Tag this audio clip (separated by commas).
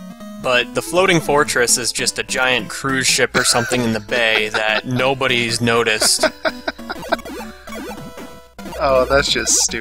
Speech